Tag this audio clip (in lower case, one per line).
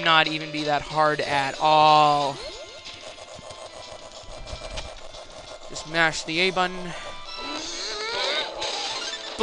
music
speech